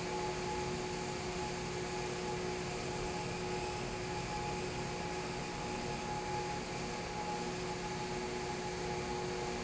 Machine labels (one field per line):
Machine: fan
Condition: abnormal